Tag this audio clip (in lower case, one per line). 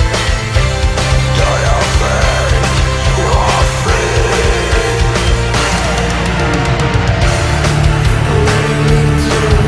music